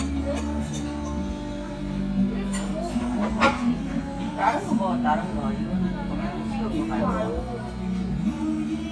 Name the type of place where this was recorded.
crowded indoor space